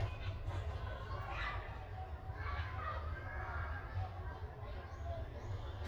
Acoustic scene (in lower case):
park